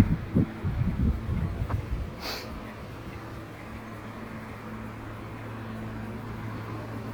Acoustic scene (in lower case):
residential area